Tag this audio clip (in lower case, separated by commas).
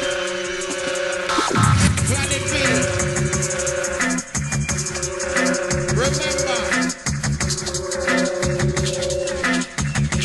drum and bass, reggae, electronic music, music